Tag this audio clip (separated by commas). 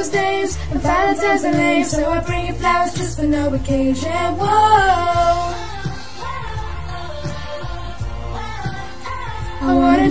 Music, Female singing